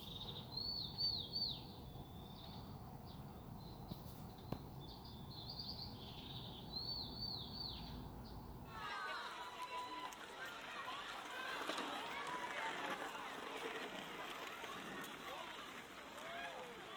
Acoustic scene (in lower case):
park